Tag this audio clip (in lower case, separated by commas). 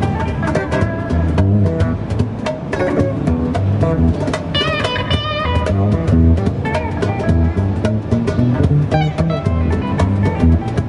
music, plucked string instrument, musical instrument, guitar